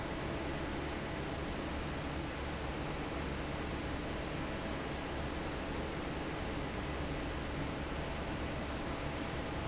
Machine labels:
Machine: fan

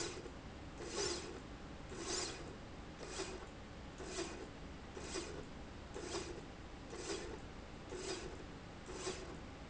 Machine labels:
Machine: slide rail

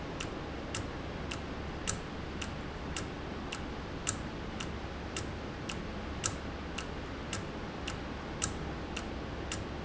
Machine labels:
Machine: valve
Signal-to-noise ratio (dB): -6 dB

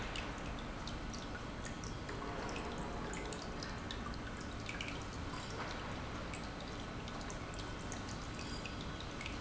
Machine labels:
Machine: pump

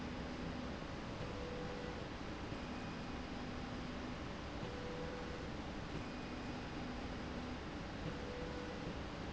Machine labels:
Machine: slide rail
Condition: normal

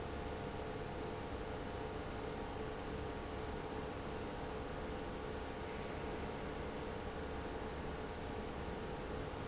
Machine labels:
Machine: pump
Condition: abnormal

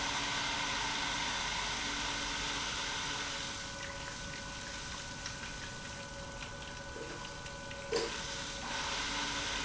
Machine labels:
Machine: pump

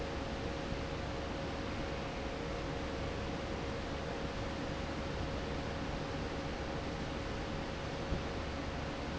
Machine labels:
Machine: fan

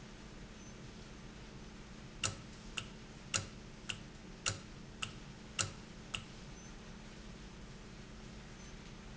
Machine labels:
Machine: valve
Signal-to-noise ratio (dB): 6 dB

